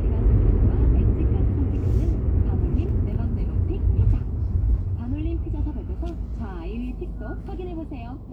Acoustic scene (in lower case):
car